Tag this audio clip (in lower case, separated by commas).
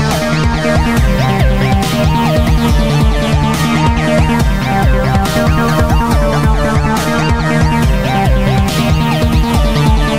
electronic music, music, dubstep